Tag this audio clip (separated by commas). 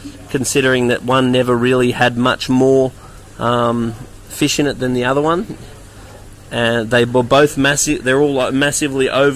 Stream, Speech